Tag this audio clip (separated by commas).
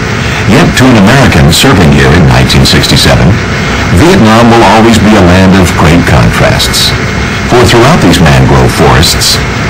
Speech